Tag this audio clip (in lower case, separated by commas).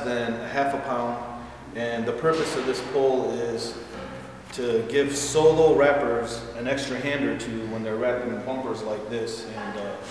speech